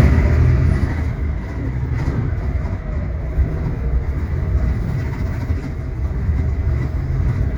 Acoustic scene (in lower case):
bus